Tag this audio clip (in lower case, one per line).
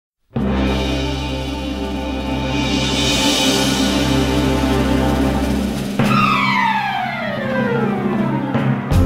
timpani
music